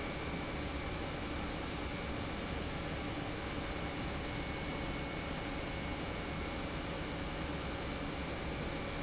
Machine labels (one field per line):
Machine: pump